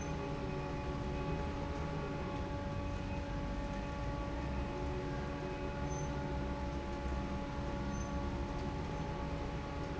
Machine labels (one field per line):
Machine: fan